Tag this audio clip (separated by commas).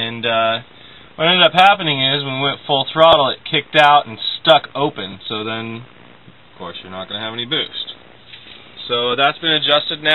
Speech